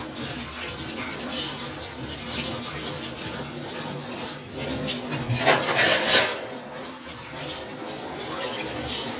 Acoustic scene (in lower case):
kitchen